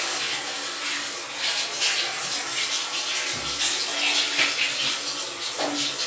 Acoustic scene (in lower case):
restroom